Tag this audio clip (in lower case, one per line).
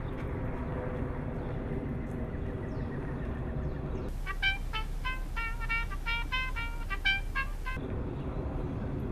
music